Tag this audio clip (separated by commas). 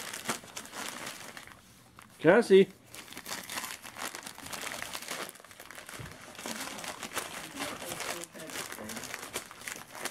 inside a small room, Speech, crinkling